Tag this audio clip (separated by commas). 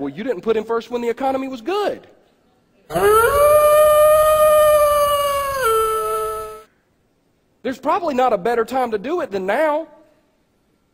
Speech